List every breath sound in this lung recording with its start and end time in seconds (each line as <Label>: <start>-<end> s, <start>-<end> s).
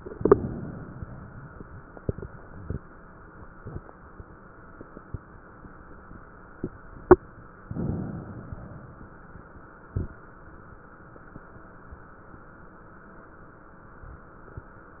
Inhalation: 7.59-8.49 s
Exhalation: 0.00-2.58 s, 8.47-10.15 s
Crackles: 0.00-2.58 s, 8.47-10.15 s